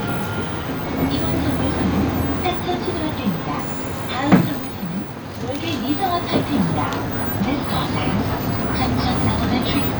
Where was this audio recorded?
on a bus